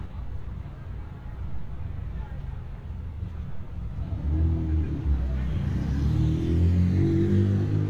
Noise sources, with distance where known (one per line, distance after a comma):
medium-sounding engine
person or small group talking, far